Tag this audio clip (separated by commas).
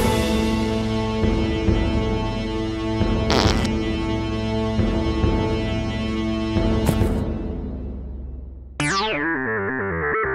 Music